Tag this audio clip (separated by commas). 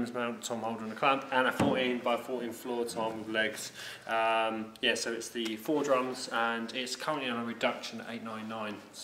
Musical instrument, Bass drum, Speech